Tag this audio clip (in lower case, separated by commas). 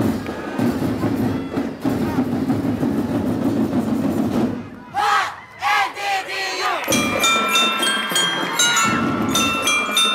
music